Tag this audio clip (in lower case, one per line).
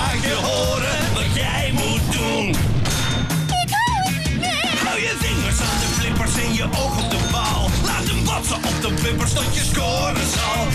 music